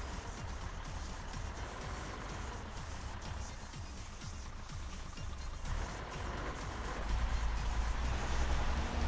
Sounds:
music, musical instrument

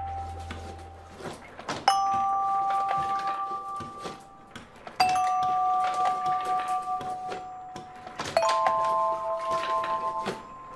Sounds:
playing glockenspiel

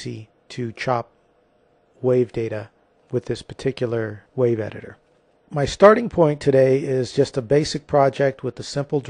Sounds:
speech

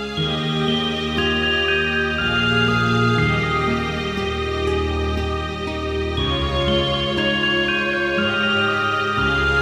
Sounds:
music, sound effect

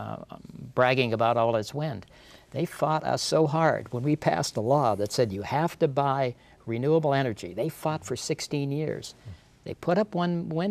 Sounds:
speech

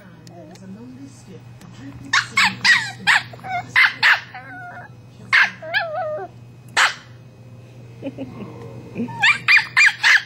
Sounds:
yip, bark, speech, domestic animals, animal, whimper (dog), dog

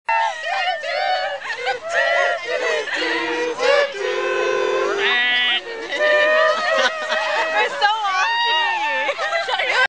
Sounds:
female singing, speech

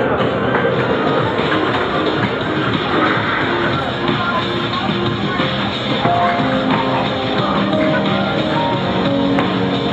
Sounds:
music

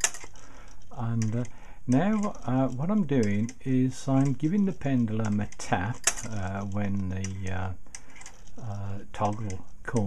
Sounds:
speech, tick-tock, tick

